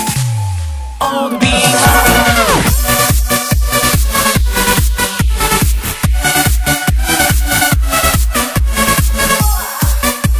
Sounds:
music, disco, pop music

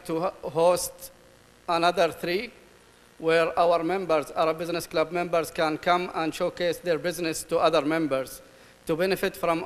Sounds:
man speaking, speech, monologue

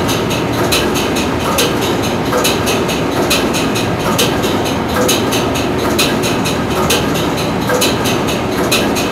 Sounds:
heavy engine (low frequency), engine

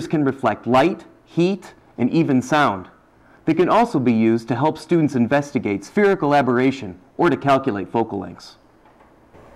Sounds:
speech

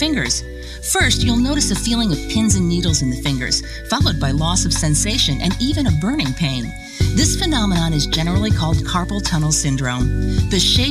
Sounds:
music, speech

